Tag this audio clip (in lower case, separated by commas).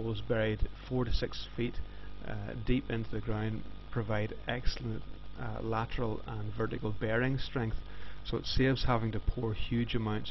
speech